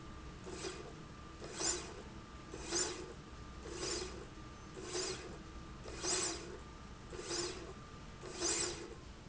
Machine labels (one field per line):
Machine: slide rail